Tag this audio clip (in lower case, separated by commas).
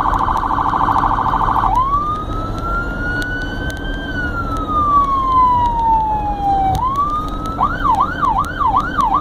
ambulance siren